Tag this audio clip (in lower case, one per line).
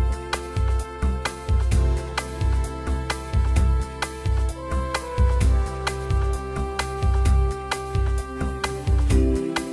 music